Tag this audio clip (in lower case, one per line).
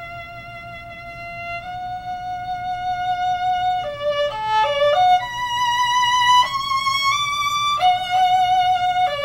musical instrument
fiddle
music